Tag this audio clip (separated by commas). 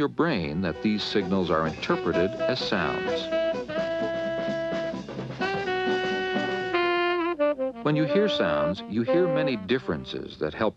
Speech, Music